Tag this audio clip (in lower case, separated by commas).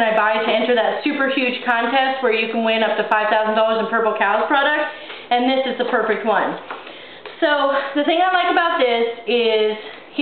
speech